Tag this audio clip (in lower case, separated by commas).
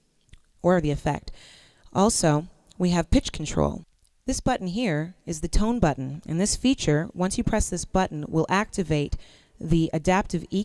speech